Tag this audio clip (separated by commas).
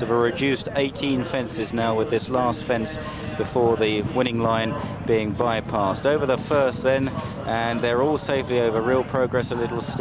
Speech